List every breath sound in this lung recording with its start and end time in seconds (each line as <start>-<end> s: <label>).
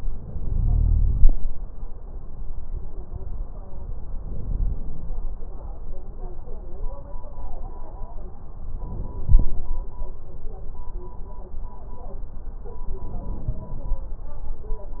0.00-1.31 s: inhalation
4.21-5.18 s: inhalation
8.79-9.75 s: inhalation
13.01-13.98 s: inhalation